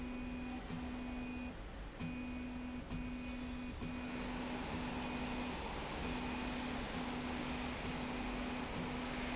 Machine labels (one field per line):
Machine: slide rail